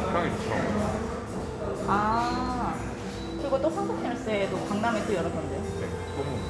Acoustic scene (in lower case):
cafe